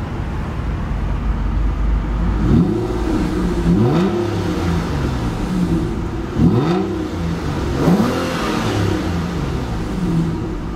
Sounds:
Vehicle, outside, urban or man-made, vroom, Car, engine accelerating

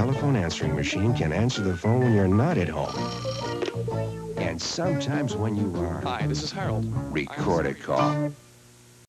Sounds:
Speech, Music

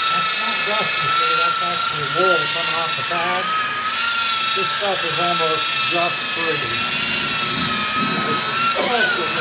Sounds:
Speech

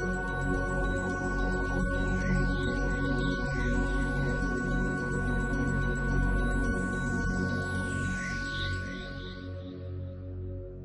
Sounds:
Music, Electronic music, Techno

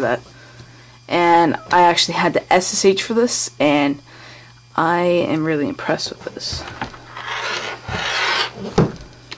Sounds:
Speech

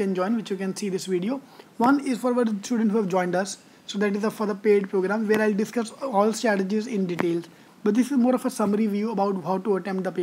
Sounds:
Speech

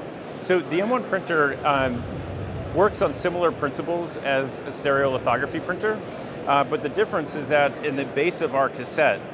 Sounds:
Speech

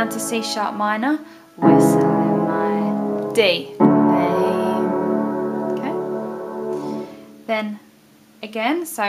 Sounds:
Music, Musical instrument, Keyboard (musical), Piano, Speech, inside a small room

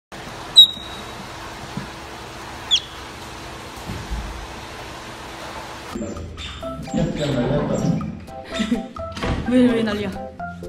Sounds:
otter growling

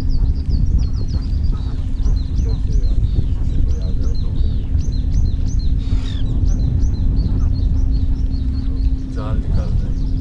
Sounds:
goose honking

